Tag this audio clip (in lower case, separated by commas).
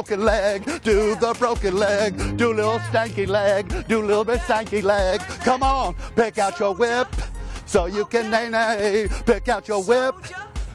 music